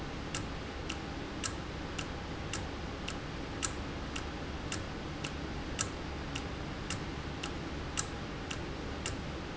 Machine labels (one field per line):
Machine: valve